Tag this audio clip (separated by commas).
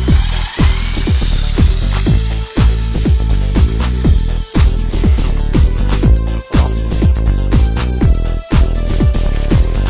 Music